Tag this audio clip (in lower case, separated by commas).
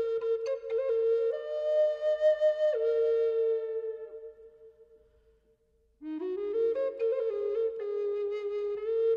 music